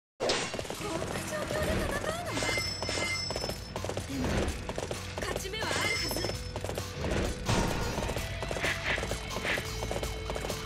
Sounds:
Music, Speech

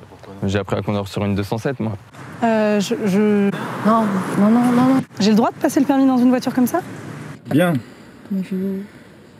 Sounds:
Vehicle, Speech, Car

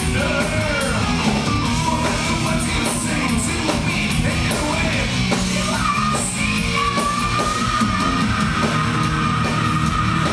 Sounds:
Music

